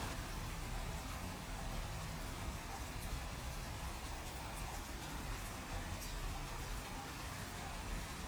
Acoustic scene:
residential area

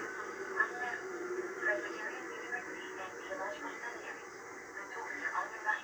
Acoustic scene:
subway train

